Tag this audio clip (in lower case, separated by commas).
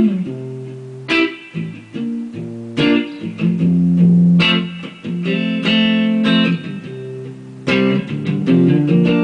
guitar, plucked string instrument, musical instrument, music, electric guitar